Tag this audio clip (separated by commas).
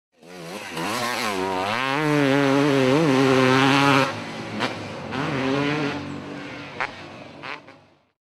Motor vehicle (road), Motorcycle, Vehicle